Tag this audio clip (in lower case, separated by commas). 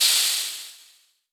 hiss